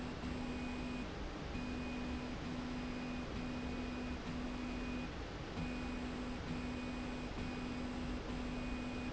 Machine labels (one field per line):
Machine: slide rail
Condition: normal